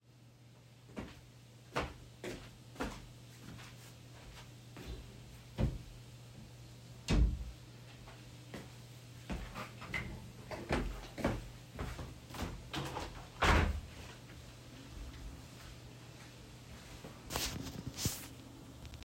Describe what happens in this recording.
go to wardrobe and close it, then go to window and open it